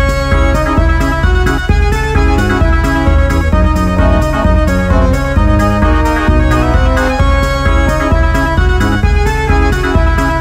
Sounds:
playing electronic organ

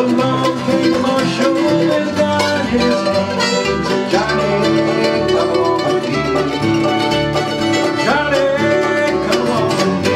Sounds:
bowed string instrument
musical instrument
guitar
plucked string instrument
fiddle
music
country
bluegrass
banjo

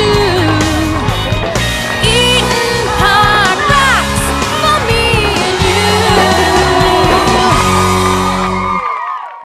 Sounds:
independent music
music

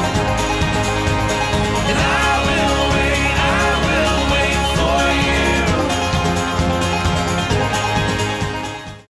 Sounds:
music

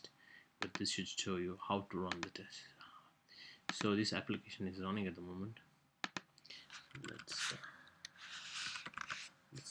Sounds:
speech

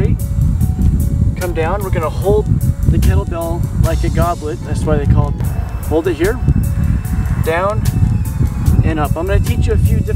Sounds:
music
speech

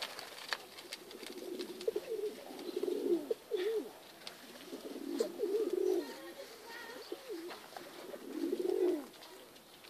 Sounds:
outside, rural or natural
bird
dove
speech
dove cooing

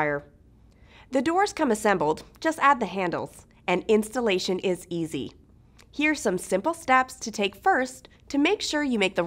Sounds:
speech

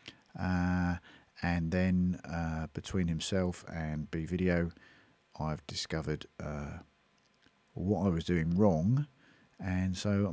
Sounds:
speech

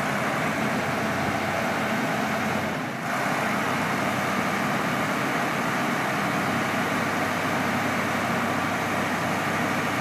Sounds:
truck
vehicle

